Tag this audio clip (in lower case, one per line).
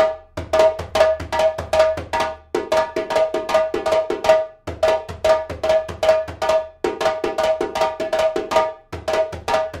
playing djembe